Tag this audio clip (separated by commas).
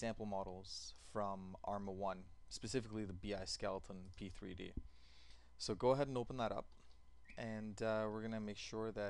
Speech